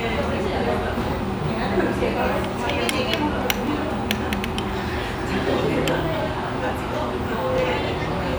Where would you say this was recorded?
in a restaurant